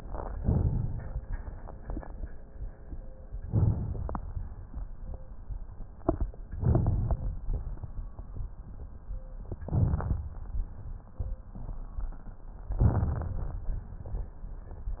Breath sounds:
0.32-1.15 s: inhalation
3.49-4.20 s: inhalation
6.56-7.26 s: inhalation
9.64-10.32 s: inhalation
12.69-13.37 s: inhalation

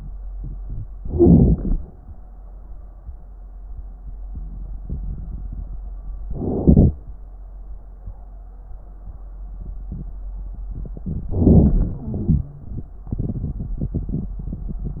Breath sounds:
0.94-1.79 s: inhalation
0.94-1.79 s: wheeze
6.28-6.97 s: inhalation
11.03-11.99 s: inhalation
11.99-12.86 s: wheeze
12.01-12.99 s: exhalation

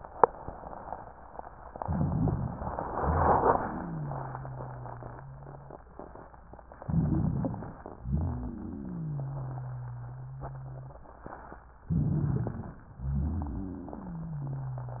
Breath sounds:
1.76-2.85 s: inhalation
1.76-2.85 s: crackles
2.92-3.93 s: exhalation
2.92-5.84 s: wheeze
6.83-7.86 s: inhalation
6.83-7.86 s: crackles
7.99-9.28 s: exhalation
7.99-11.01 s: wheeze
11.88-12.88 s: inhalation
11.88-12.88 s: crackles
12.98-14.37 s: exhalation
12.98-15.00 s: wheeze

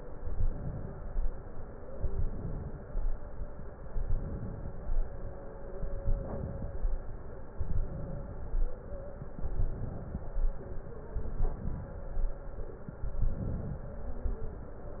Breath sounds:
0.15-1.27 s: inhalation
1.95-3.07 s: inhalation
3.90-4.74 s: inhalation
5.90-6.74 s: inhalation
7.74-8.57 s: inhalation
9.44-10.27 s: inhalation
11.21-12.04 s: inhalation
13.14-13.98 s: inhalation

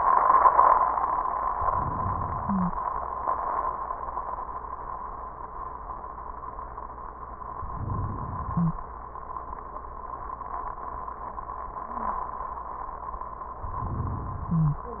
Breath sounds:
1.50-2.84 s: inhalation
2.39-2.71 s: wheeze
7.40-9.18 s: inhalation
8.53-8.85 s: wheeze
13.56-15.00 s: inhalation
14.55-15.00 s: wheeze

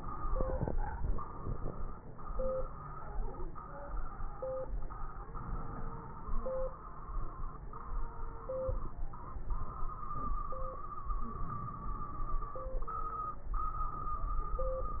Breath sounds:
5.16-6.35 s: inhalation
11.31-12.53 s: crackles
11.34-12.53 s: inhalation

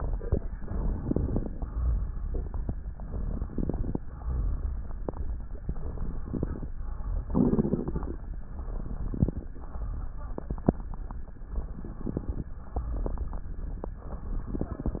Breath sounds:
0.57-1.48 s: inhalation
0.57-1.48 s: crackles
1.59-2.66 s: exhalation
3.04-3.95 s: inhalation
3.04-3.95 s: crackles
4.08-5.14 s: exhalation
5.75-6.66 s: inhalation
5.75-6.66 s: crackles
6.87-7.93 s: exhalation
8.41-9.47 s: inhalation
8.41-9.47 s: crackles
9.62-10.68 s: exhalation
11.52-12.58 s: inhalation
11.52-12.58 s: crackles
12.88-13.95 s: exhalation
14.12-15.00 s: inhalation
14.12-15.00 s: crackles

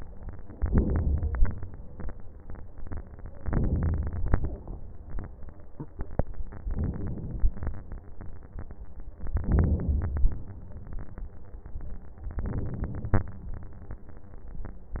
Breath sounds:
0.55-1.48 s: inhalation
3.44-4.59 s: inhalation
6.63-7.78 s: inhalation
9.26-10.40 s: inhalation
12.31-13.36 s: inhalation

